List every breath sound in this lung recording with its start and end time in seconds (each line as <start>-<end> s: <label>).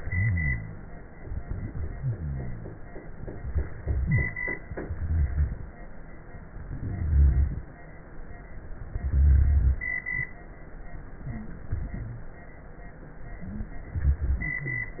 0.00-0.80 s: rhonchi
1.97-2.77 s: rhonchi
3.96-4.27 s: wheeze
4.86-5.62 s: inhalation
4.86-5.62 s: rhonchi
6.81-7.61 s: inhalation
6.81-7.61 s: rhonchi
8.99-9.79 s: inhalation
8.99-9.79 s: rhonchi
13.91-14.67 s: rhonchi
13.93-14.69 s: inhalation